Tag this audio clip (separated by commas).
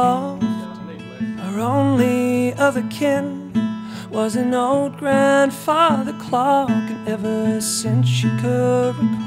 Music